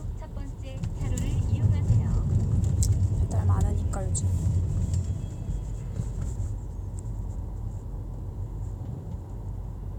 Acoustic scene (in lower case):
car